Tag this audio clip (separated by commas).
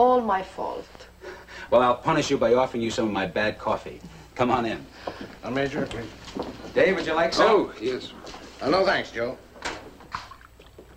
Speech